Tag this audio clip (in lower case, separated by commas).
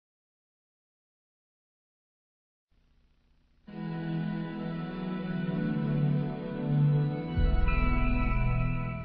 television, music